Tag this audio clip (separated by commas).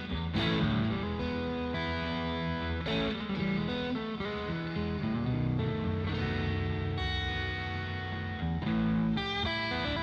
Strum, Musical instrument, Plucked string instrument, Guitar, Electric guitar, Music